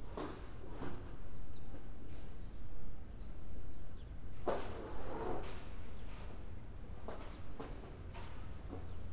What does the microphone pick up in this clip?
background noise